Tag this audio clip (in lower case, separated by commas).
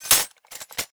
glass